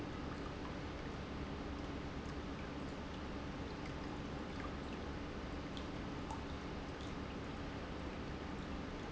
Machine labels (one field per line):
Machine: pump